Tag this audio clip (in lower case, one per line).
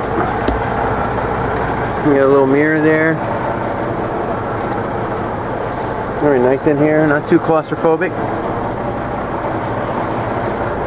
speech
vehicle